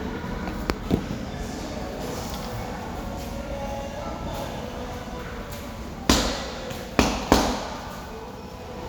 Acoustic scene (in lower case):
crowded indoor space